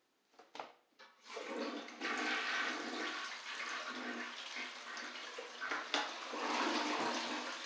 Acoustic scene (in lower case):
restroom